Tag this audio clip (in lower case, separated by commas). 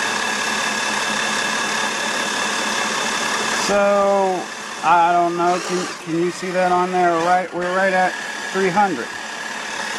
speech